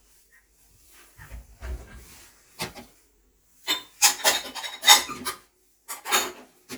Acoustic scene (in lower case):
kitchen